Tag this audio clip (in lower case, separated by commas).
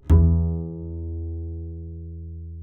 bowed string instrument, musical instrument, music